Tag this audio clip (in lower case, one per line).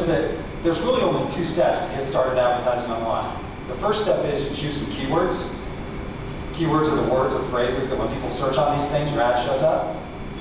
speech
inside a large room or hall